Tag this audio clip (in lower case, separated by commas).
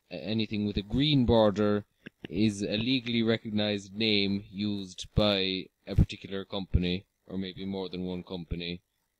speech